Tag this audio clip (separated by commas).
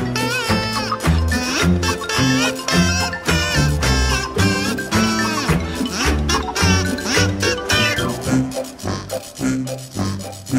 Music, Video game music